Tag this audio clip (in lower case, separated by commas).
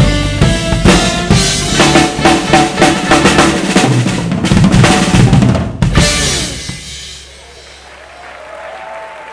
drum, bass drum, cymbal, drum kit, snare drum, music, musical instrument, hi-hat